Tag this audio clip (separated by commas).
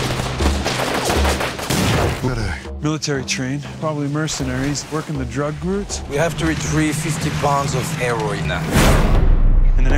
Fusillade